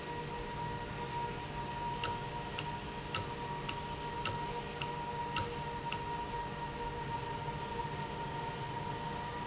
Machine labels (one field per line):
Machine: valve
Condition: normal